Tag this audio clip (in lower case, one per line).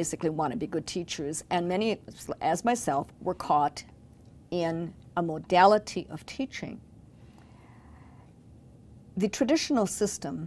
speech